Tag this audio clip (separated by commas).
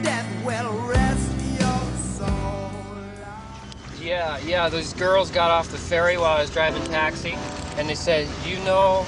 Music, Speech